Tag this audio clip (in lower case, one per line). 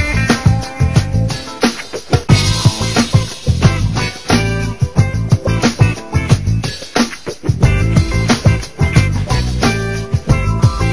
music